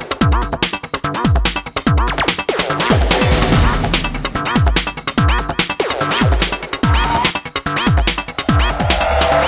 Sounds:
music
static

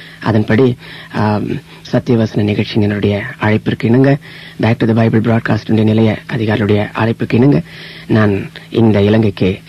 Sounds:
speech

